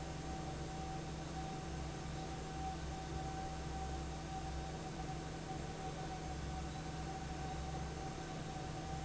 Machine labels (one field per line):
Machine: fan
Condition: normal